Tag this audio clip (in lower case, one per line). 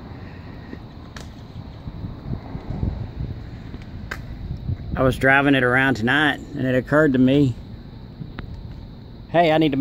speech